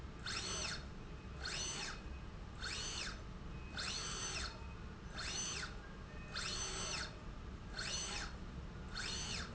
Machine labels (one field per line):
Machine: slide rail